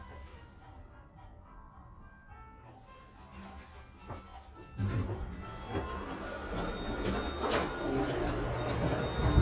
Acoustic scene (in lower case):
elevator